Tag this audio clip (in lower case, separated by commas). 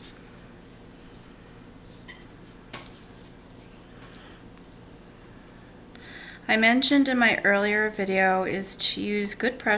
speech